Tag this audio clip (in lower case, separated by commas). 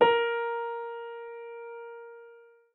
music, piano, musical instrument, keyboard (musical)